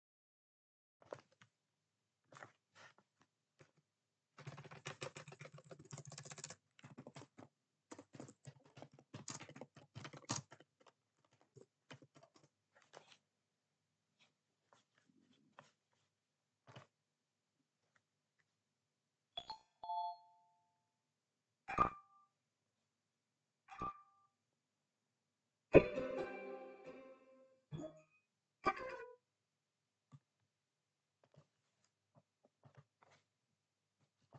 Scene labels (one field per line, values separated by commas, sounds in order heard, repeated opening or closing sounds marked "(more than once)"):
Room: bedroom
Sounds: keyboard typing, phone ringing